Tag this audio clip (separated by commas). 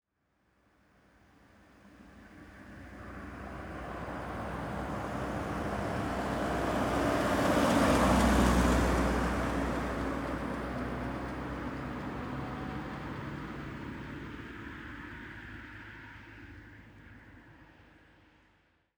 Car passing by, Vehicle, Motor vehicle (road), Car